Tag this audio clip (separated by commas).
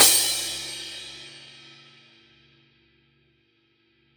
Music, Cymbal, Crash cymbal, Percussion, Musical instrument